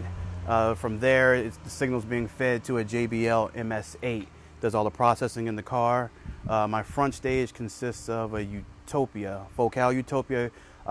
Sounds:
Speech

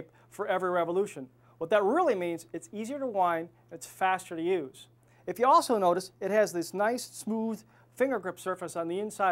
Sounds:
Speech

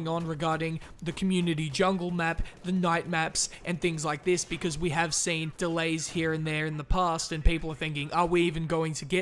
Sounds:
Speech

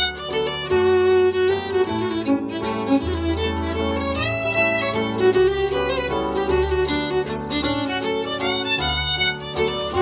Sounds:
Music, Musical instrument, Violin

